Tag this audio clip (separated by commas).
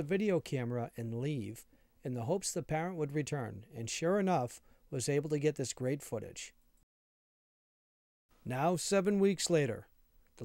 Speech